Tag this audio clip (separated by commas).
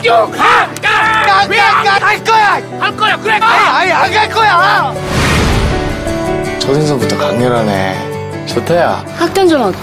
Music, Speech